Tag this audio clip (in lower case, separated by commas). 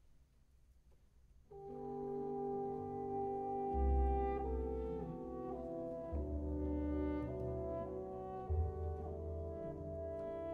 music